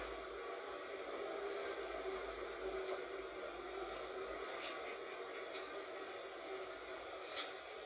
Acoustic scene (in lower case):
bus